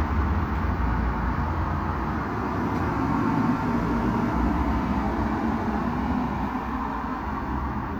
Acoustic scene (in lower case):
street